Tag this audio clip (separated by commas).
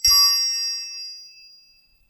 Bell